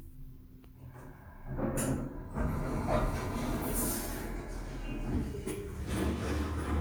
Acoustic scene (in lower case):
elevator